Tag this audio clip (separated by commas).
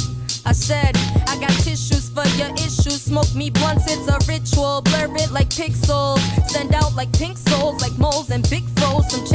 Music, Speech